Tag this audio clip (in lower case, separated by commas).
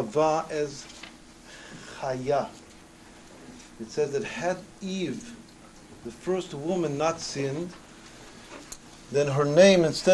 speech